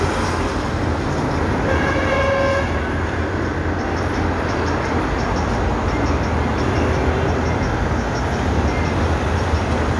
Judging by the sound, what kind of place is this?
street